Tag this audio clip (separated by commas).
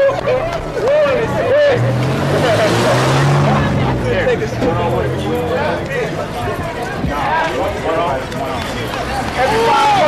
Speech, Hubbub, outside, urban or man-made